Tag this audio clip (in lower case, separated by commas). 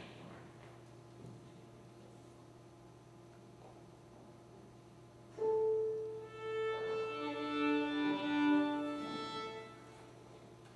musical instrument, violin, music